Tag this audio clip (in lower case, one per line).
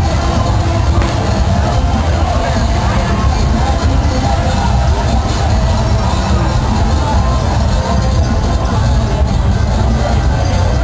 speech
music